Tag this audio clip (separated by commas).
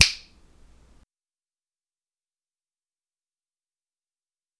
Finger snapping, Hands